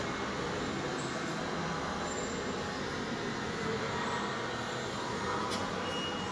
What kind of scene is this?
subway station